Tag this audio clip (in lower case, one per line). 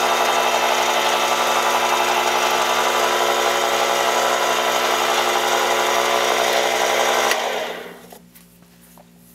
lathe spinning